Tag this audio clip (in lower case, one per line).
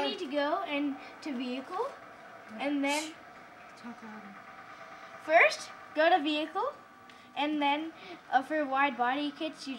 speech
car